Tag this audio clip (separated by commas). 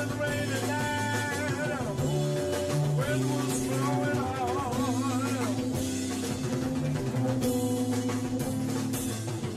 Musical instrument, Drum kit, Drum, Music, Blues, Guitar